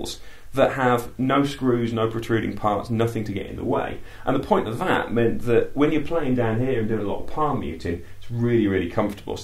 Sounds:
Speech

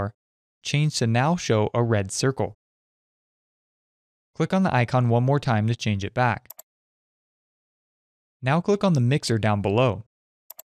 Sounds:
Speech

